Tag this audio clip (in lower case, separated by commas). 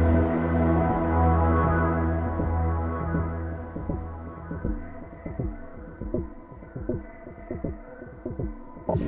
music, musical instrument